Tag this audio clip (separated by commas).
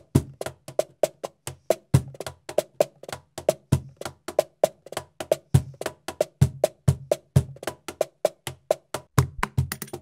Music